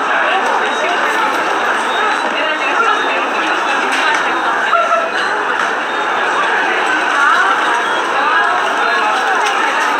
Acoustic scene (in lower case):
subway station